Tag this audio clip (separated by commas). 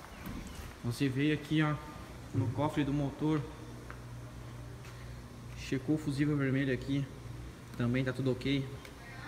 running electric fan